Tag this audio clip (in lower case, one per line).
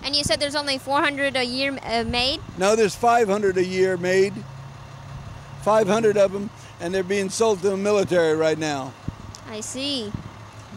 speech